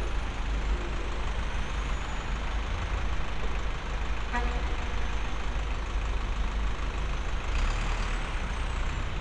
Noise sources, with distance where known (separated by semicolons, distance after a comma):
large-sounding engine, near; car horn, near